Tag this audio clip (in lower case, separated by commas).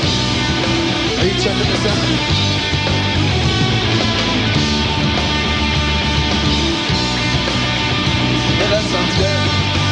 speech, music, rock music